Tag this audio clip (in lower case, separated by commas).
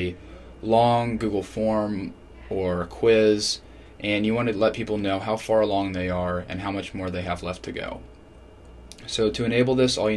speech